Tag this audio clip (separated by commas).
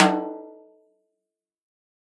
Snare drum, Drum, Music, Percussion, Musical instrument